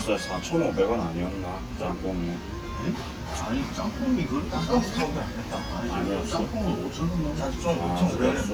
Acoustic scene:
restaurant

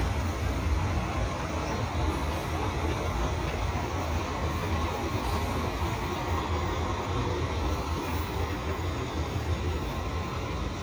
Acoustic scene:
street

